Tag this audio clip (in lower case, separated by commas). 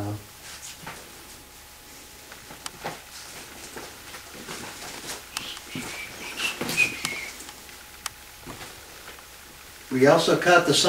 whistling